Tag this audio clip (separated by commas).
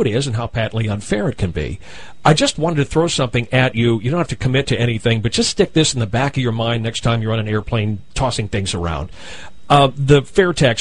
Speech